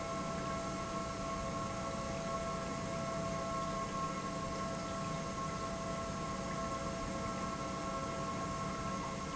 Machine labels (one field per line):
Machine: pump